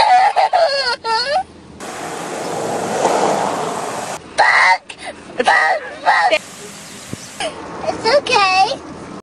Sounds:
speech

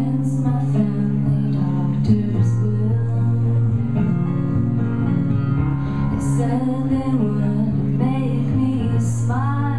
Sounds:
music

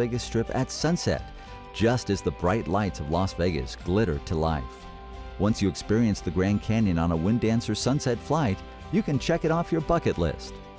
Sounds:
speech, music

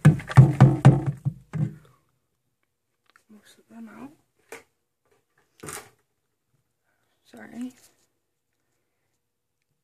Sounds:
speech

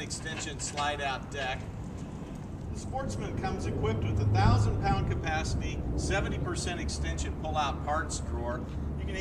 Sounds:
speech

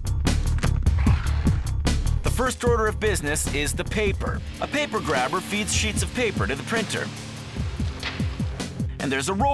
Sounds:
printer, speech, music

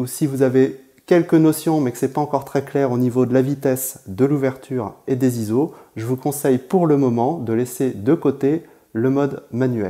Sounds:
speech

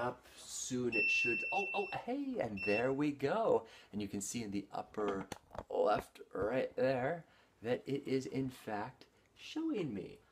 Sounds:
speech, inside a small room

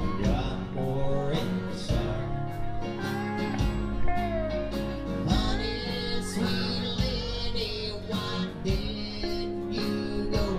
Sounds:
country

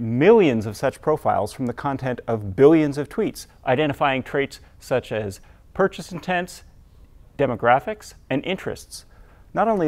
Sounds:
speech

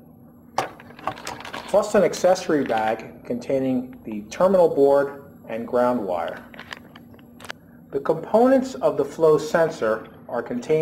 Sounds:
inside a small room, speech

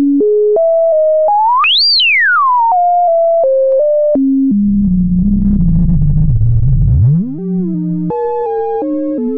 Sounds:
music, synthesizer

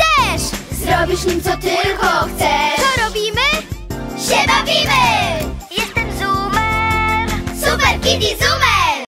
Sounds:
music, speech

